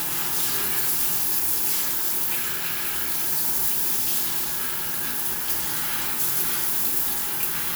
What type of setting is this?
restroom